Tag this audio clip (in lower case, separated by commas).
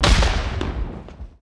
explosion, boom